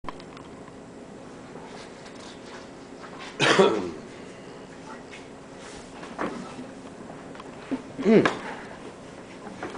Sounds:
inside a large room or hall

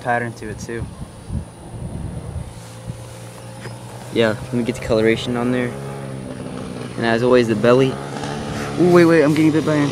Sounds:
outside, rural or natural
speech

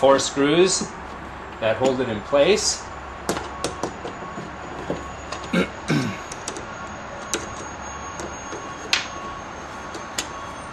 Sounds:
speech

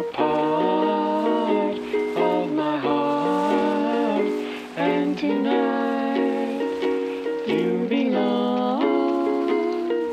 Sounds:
music

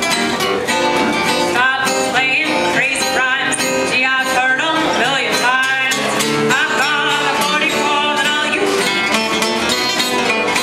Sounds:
musical instrument
guitar
strum
acoustic guitar
plucked string instrument
blues
music

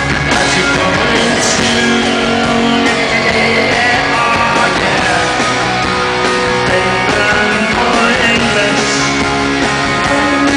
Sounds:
music

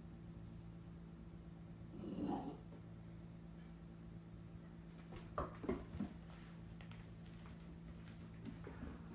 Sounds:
dog barking

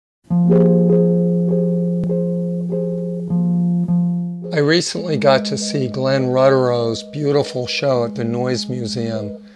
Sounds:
music
speech

